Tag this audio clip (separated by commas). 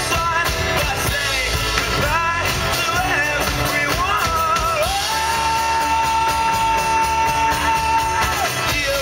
outside, urban or man-made, Musical instrument, Bowed string instrument, Music